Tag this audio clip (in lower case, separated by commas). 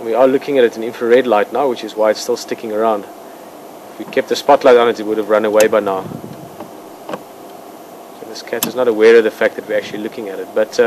speech